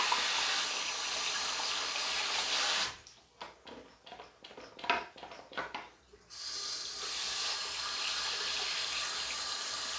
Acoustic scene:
restroom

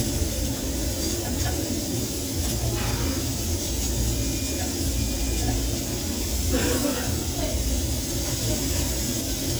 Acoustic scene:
restaurant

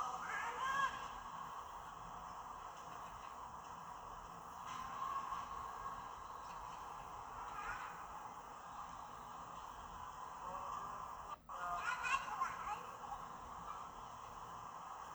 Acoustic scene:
park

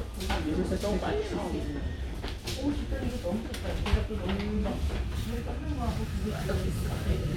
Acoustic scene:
subway train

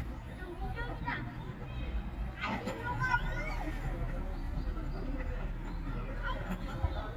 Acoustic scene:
park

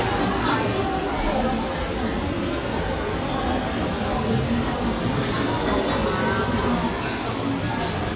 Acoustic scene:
restaurant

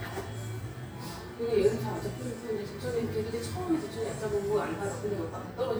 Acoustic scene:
cafe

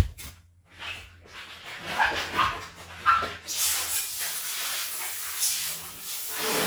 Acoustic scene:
restroom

